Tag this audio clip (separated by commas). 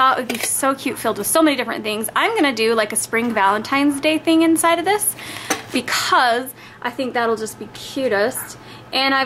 Speech